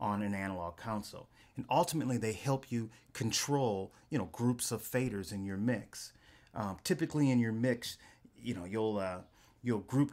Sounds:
Speech

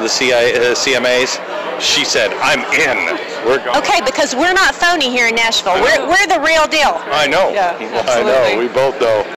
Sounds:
Speech

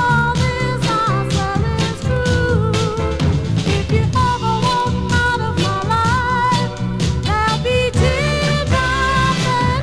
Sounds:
Music

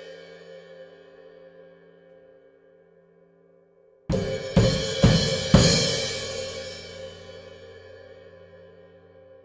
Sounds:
Cymbal, playing cymbal

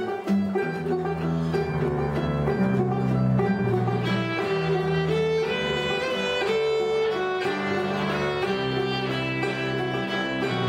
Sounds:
Classical music, String section, Music, Violin, Bluegrass, Musical instrument, Bowed string instrument

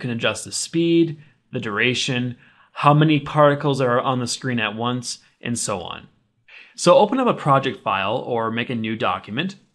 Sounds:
Speech

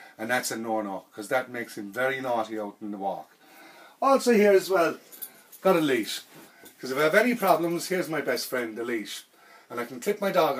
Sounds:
Speech

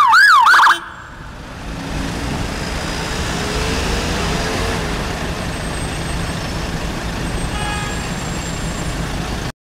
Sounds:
Vehicle, Truck

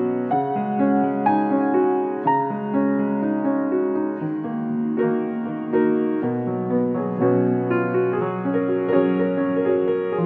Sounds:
Tender music, Music

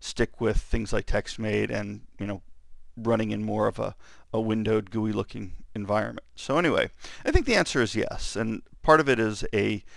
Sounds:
Speech

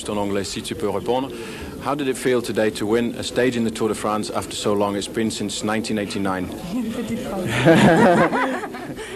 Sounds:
inside a large room or hall, Speech

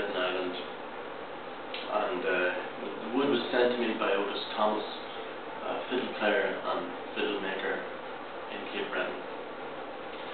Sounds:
Speech

